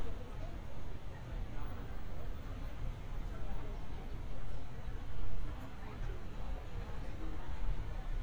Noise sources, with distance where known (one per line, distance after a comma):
person or small group talking, far